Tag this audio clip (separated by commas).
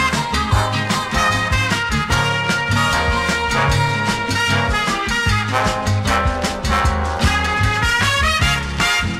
Swing music, Music